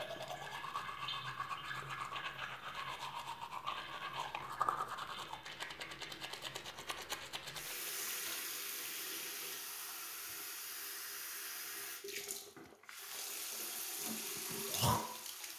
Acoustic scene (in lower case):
restroom